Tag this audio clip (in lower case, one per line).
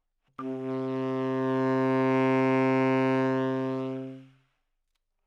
musical instrument
music
woodwind instrument